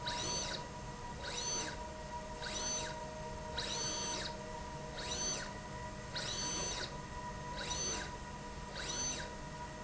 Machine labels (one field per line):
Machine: slide rail